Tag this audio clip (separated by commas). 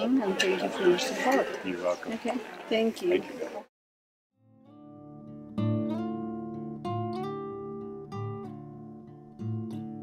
Harp